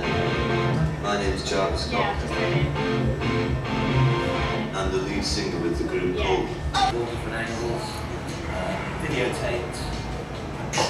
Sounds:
Music, Speech

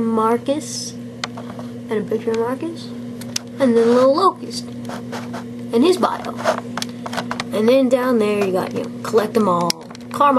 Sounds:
Speech

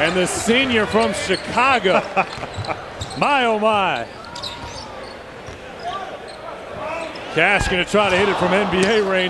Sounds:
Speech

